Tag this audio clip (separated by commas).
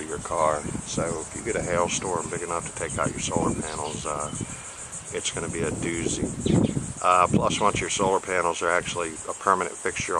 Speech